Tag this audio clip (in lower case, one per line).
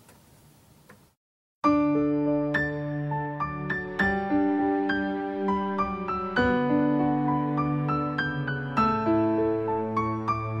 sad music
music